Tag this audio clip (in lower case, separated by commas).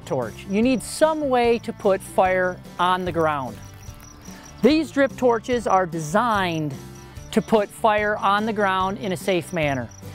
music, speech